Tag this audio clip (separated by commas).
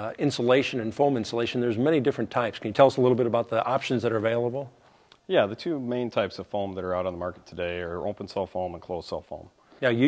Speech